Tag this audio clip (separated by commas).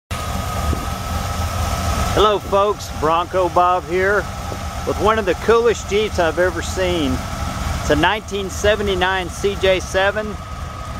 Car, Speech, outside, urban or man-made, Vehicle